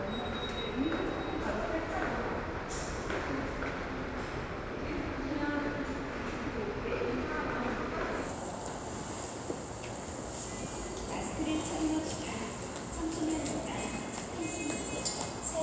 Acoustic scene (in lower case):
subway station